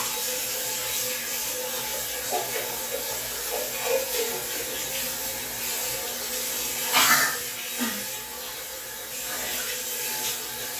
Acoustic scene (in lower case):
restroom